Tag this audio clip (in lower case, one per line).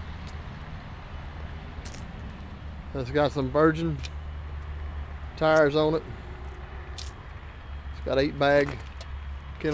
speech